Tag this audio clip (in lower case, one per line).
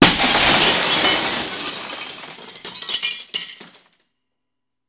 shatter
glass